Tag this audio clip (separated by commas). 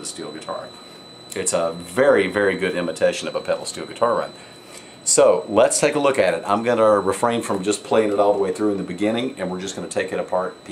Speech